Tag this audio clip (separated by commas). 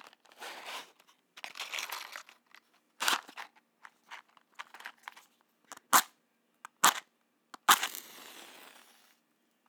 Fire